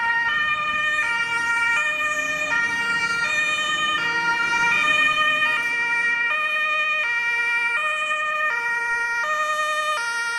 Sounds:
fire engine

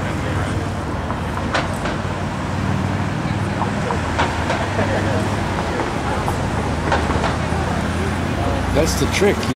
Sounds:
speech

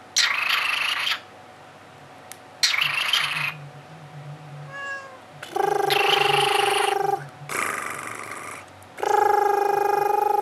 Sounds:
bird, tweet, bird vocalization

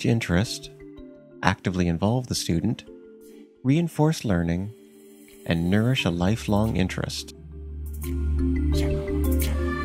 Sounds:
music, speech

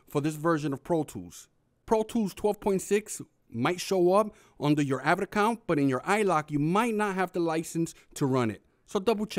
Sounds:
speech

